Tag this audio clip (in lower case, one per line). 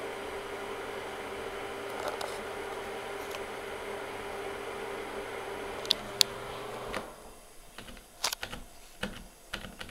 mechanical fan